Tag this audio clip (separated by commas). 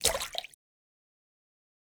Splash, Liquid